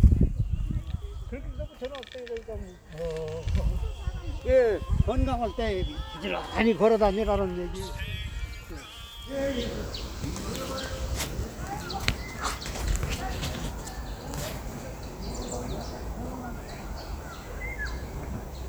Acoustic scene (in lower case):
park